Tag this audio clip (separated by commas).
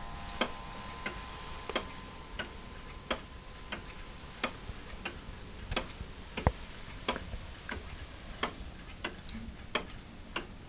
Tick, Tick-tock